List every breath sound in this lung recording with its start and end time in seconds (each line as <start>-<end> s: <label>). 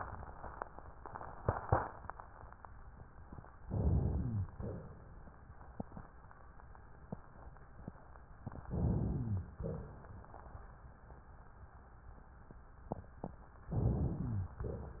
3.66-4.46 s: inhalation
4.08-4.46 s: rhonchi
4.57-5.37 s: exhalation
8.69-9.54 s: inhalation
9.09-9.47 s: rhonchi
9.60-10.46 s: exhalation
13.76-14.61 s: inhalation
14.23-14.61 s: rhonchi